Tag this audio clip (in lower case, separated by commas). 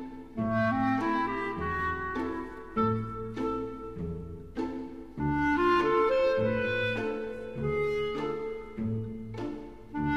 music